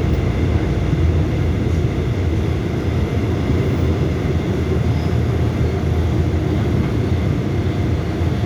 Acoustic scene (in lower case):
subway train